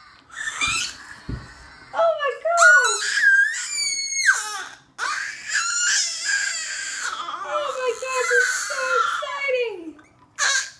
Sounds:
speech

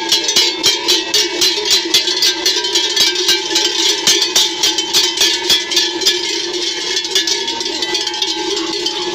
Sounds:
cattle

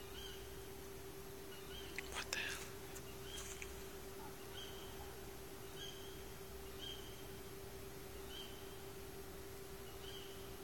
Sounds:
bird song, bird

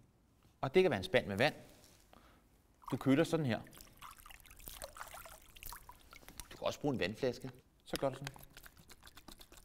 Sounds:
speech

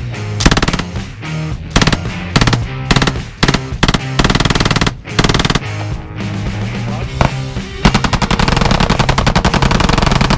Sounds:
machine gun shooting

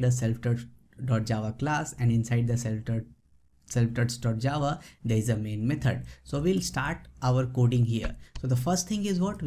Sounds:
reversing beeps

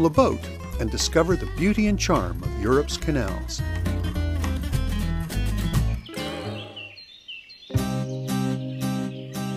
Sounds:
music, speech

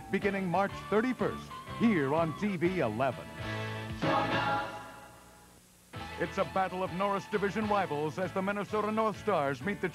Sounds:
speech, music, television

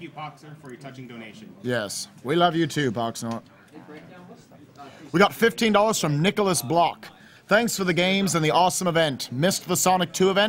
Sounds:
speech

